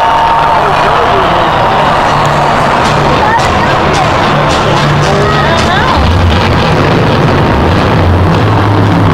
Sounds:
Vehicle, Speech

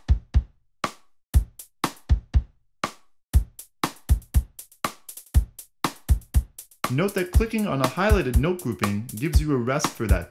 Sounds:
Speech, Music

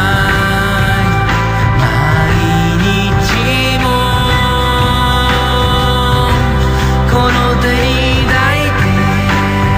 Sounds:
Independent music

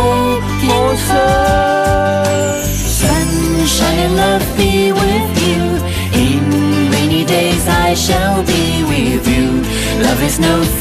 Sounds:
Music, Theme music

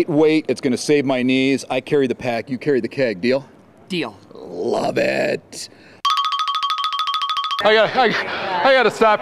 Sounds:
Speech, Music, inside a large room or hall

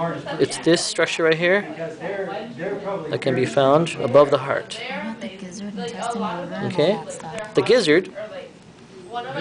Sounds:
Speech

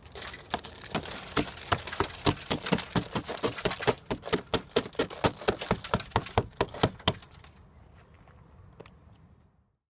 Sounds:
Breaking

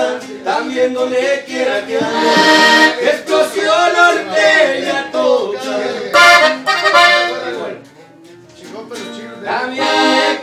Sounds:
Music

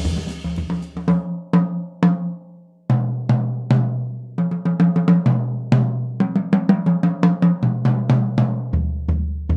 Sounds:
Music, Snare drum, playing snare drum, Drum, Hi-hat

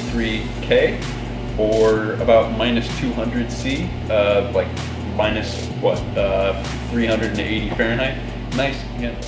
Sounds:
Speech, Music

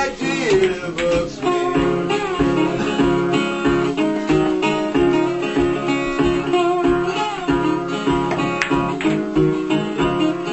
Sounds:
Electric guitar, Music, Guitar, Musical instrument

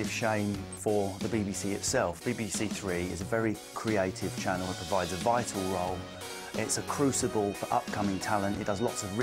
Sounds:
Speech, Narration, Male speech, Music

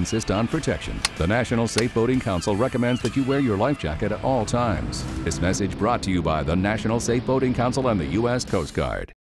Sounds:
Sailboat, Music, Speech

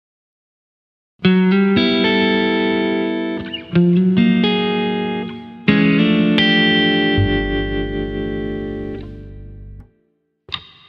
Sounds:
Musical instrument, Music, inside a small room, Effects unit, Guitar, Plucked string instrument

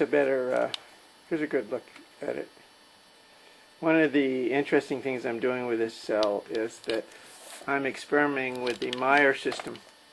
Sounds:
Speech

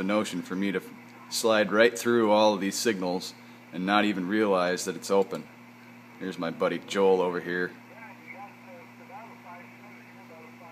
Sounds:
Radio, Speech

